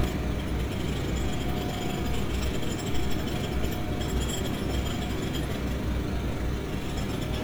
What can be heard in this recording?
jackhammer